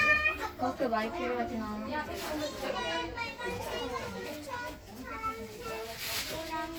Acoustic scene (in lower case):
crowded indoor space